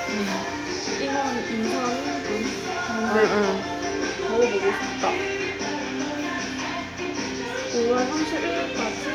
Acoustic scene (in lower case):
restaurant